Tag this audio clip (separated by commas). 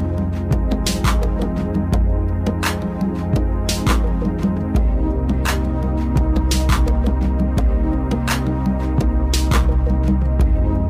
Music